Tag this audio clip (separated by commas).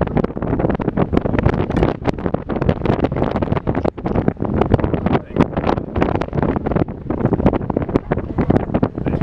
Speech, outside, rural or natural